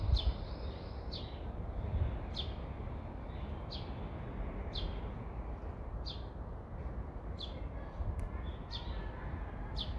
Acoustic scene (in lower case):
residential area